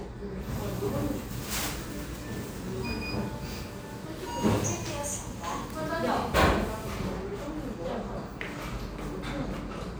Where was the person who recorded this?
in a cafe